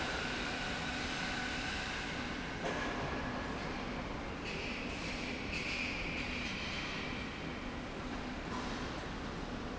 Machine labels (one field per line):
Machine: slide rail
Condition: normal